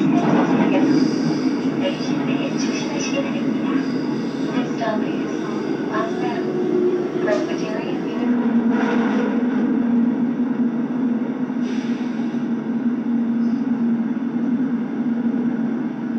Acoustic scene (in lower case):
subway train